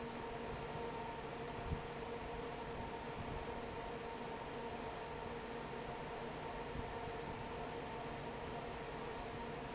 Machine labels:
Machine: fan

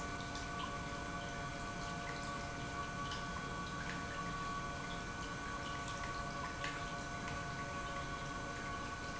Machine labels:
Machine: pump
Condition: normal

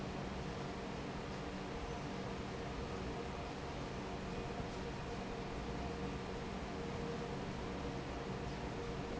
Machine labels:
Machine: fan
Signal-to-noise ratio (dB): 0 dB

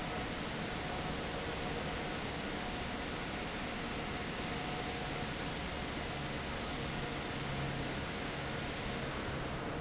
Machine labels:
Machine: fan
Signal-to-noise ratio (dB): -6 dB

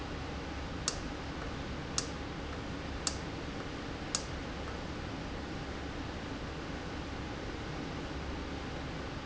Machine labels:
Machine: valve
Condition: normal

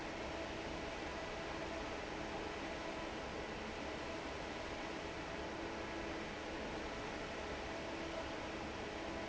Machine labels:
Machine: fan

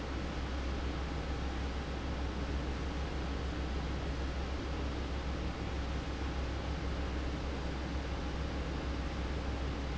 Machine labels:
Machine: fan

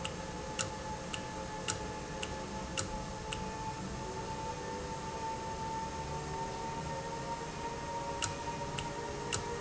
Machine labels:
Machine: valve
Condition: normal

